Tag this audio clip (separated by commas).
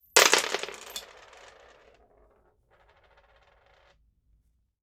Domestic sounds, Coin (dropping)